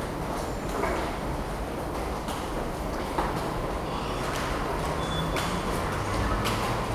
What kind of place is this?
subway station